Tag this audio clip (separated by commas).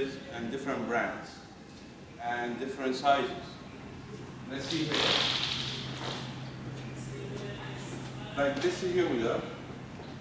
Speech